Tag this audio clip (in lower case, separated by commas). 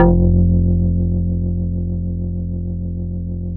organ, keyboard (musical), musical instrument, music